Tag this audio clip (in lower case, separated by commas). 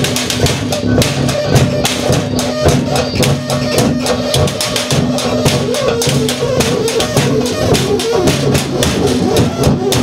music, musical instrument